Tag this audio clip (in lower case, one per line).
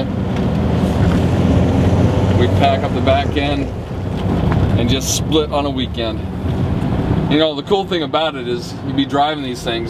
vehicle